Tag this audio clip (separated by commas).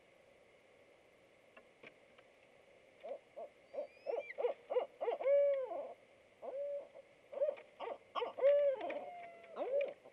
owl hooting